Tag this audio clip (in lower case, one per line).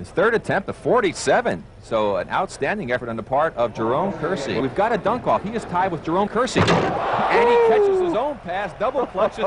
speech
slam